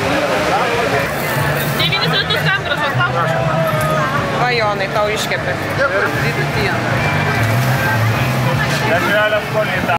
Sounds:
Speech, Music

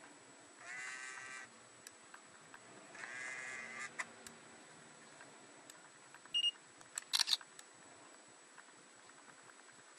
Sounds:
Camera

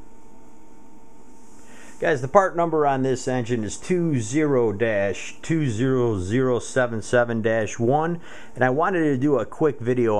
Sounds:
Speech

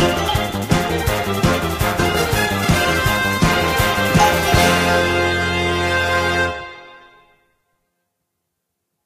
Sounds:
Music, Soundtrack music, Glockenspiel

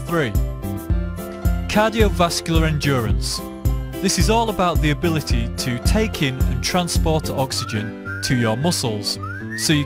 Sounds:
Music, Speech

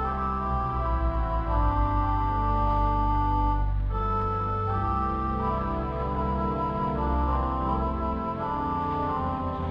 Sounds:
Musical instrument, Music, Keyboard (musical)

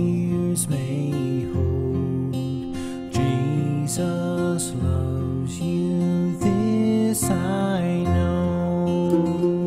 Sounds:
Lullaby, Music

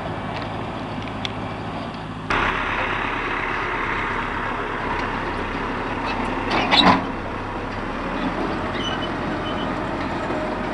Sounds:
Vehicle, outside, rural or natural

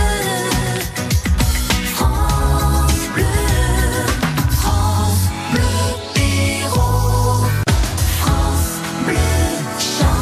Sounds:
Music

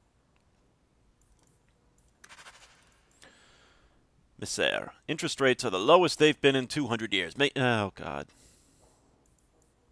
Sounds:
Clicking, Speech, inside a small room

